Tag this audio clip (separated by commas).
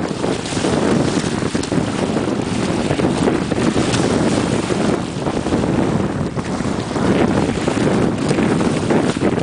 Wind, Wind noise (microphone), wind noise